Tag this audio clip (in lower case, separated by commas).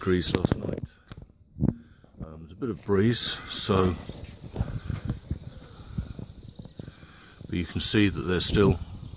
speech, outside, rural or natural